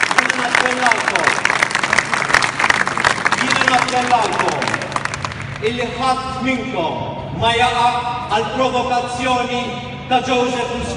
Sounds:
speech

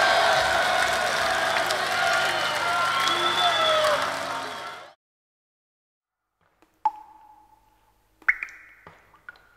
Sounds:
speech

